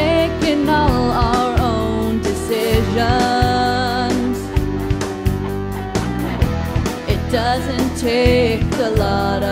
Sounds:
music

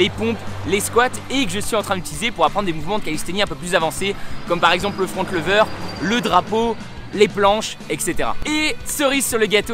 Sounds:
speech, music

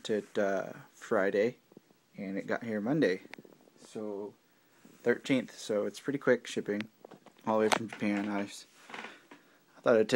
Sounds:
speech

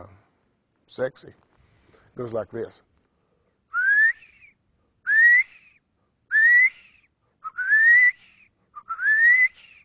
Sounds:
speech, male speech

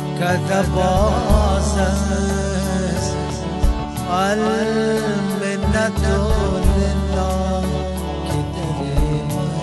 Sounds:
music, traditional music

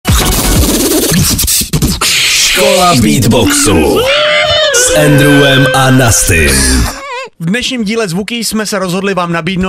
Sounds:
beatboxing, music, speech, vocal music, hip hop music

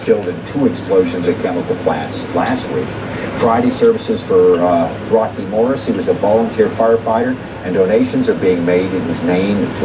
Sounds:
speech

